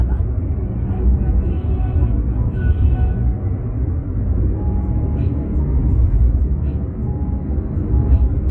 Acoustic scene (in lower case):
car